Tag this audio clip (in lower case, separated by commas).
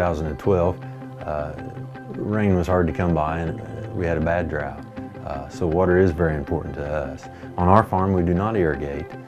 music, speech